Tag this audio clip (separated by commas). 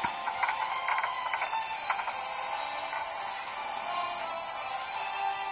Music